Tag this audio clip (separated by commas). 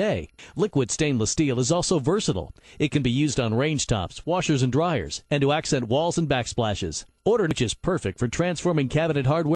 Speech